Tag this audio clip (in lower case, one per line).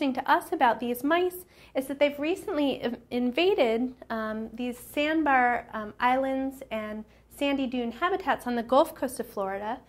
speech